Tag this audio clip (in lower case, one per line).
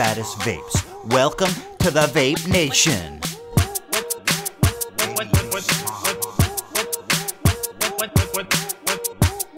people coughing